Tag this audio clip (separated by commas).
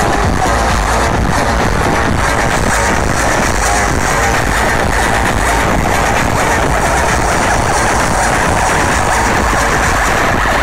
Dance music, Exciting music, Music